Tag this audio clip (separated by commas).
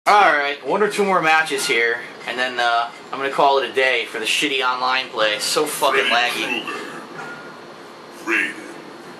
Speech